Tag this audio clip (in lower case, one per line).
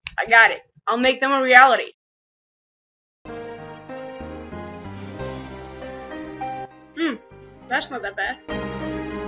speech
child speech
music
inside a small room